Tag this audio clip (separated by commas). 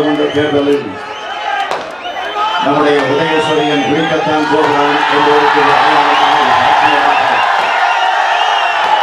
monologue, Speech, Male speech